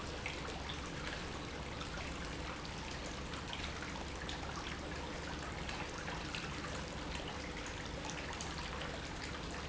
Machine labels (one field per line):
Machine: pump